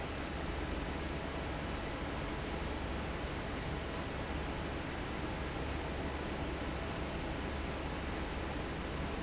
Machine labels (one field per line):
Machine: fan